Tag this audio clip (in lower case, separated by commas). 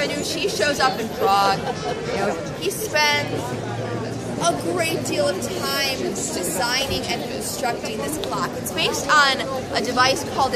speech, music